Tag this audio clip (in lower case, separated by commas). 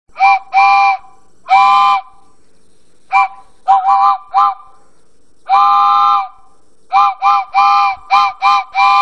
steam whistle, sound effect, train whistle